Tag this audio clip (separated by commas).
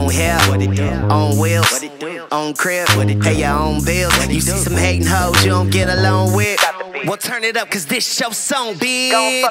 Slap, Music